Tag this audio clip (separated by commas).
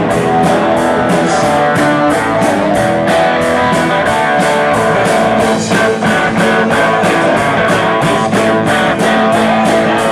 Rock and roll, Music